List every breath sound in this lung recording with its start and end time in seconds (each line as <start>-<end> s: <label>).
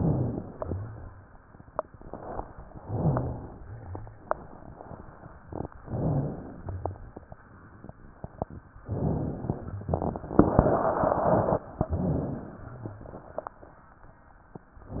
0.00-0.51 s: rhonchi
0.52-1.27 s: exhalation
0.52-1.27 s: rhonchi
2.76-3.65 s: inhalation
2.76-3.65 s: rhonchi
3.67-4.29 s: exhalation
3.67-4.29 s: rhonchi
5.87-6.49 s: rhonchi
5.87-6.59 s: inhalation
6.59-7.22 s: exhalation
6.59-7.22 s: rhonchi
8.83-9.60 s: inhalation
11.79-12.64 s: inhalation
12.66-13.28 s: exhalation
12.66-13.28 s: rhonchi